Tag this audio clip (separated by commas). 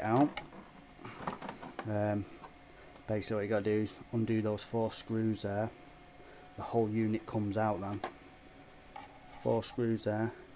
Speech